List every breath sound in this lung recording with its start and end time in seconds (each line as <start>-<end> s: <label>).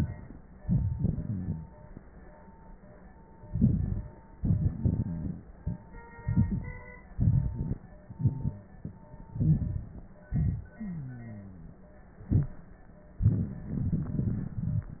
1.23-1.75 s: rhonchi
3.49-4.10 s: inhalation
4.36-5.52 s: exhalation
4.36-5.52 s: rhonchi
6.24-6.89 s: inhalation
7.15-7.80 s: exhalation
9.32-9.90 s: inhalation
10.28-10.78 s: exhalation
10.78-11.89 s: wheeze